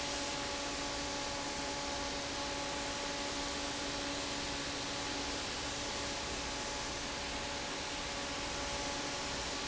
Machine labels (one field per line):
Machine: fan